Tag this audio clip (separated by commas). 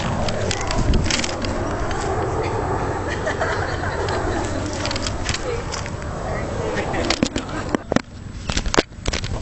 Speech